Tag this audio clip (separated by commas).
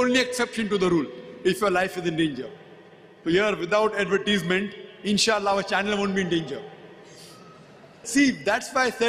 Speech